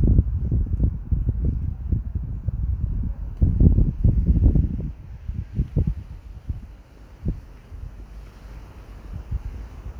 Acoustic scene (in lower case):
park